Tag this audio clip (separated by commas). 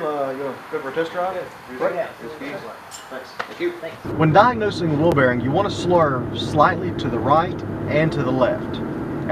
Speech